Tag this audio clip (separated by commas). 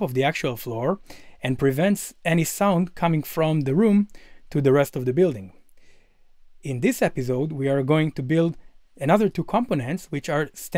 Speech